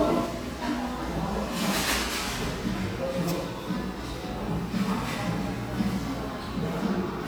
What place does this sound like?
cafe